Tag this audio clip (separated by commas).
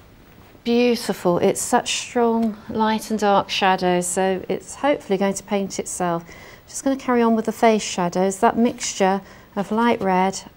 Speech